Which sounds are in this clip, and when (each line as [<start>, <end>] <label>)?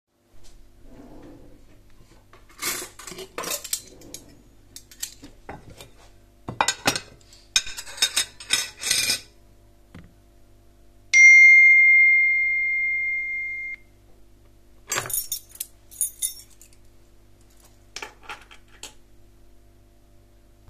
[0.83, 1.61] wardrobe or drawer
[2.54, 4.21] cutlery and dishes
[3.77, 4.44] wardrobe or drawer
[4.74, 9.31] cutlery and dishes
[14.85, 18.96] cutlery and dishes